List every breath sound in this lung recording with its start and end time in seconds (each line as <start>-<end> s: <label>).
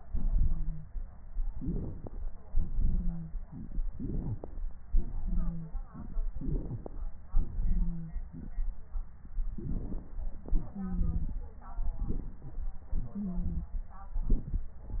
1.41-2.39 s: inhalation
1.41-2.39 s: crackles
2.45-3.36 s: exhalation
2.83-3.35 s: wheeze
3.93-4.62 s: inhalation
3.93-4.62 s: crackles
4.95-5.86 s: exhalation
5.22-5.75 s: wheeze
6.37-7.12 s: inhalation
6.37-7.12 s: crackles
7.32-8.70 s: exhalation
7.64-8.13 s: wheeze
9.52-10.26 s: crackles
9.54-10.30 s: inhalation
10.43-11.56 s: exhalation
10.73-11.29 s: wheeze
11.87-12.82 s: inhalation
12.86-13.96 s: exhalation
13.12-13.65 s: wheeze
13.93-14.74 s: inhalation
13.93-14.74 s: crackles